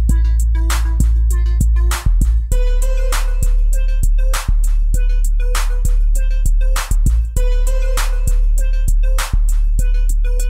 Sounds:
music

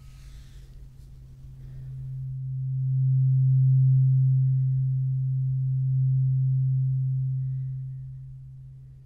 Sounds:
playing tuning fork

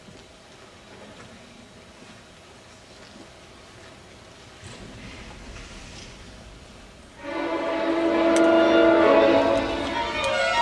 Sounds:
violin, music, musical instrument

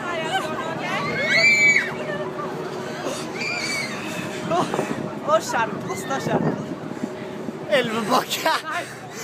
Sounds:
speech

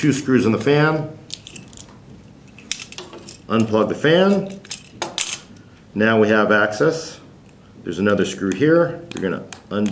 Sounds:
inside a small room, speech

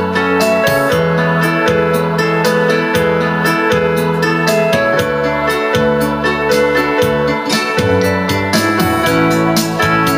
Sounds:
music

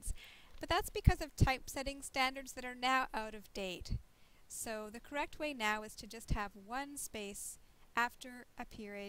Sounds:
speech

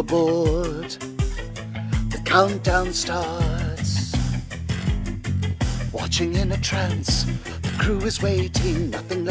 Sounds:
music

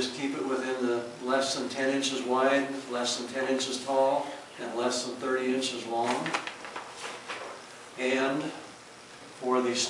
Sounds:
inside a small room, speech

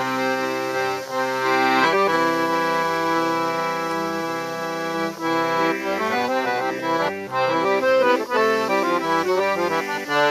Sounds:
playing accordion

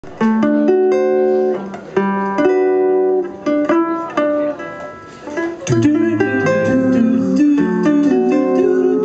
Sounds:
singing, musical instrument, music

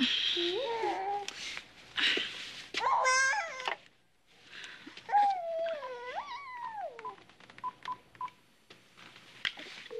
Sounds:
inside a small room, dtmf

